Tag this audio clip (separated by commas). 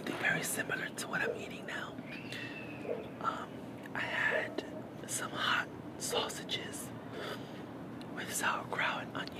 Speech